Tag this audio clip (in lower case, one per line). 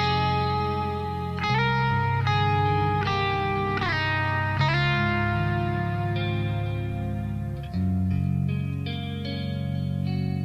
plucked string instrument
guitar
strum
musical instrument
music